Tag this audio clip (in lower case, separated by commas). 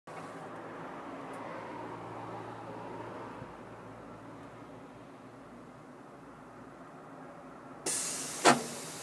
vehicle, car